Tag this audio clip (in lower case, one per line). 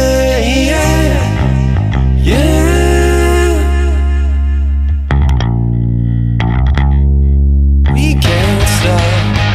independent music
music